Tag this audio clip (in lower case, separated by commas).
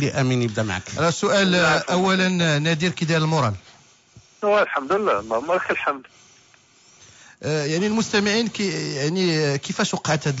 speech